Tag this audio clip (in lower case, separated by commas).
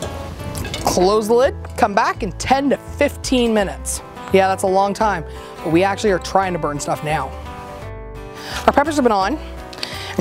speech, music